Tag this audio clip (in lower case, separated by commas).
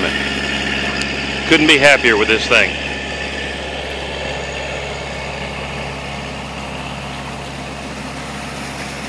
speech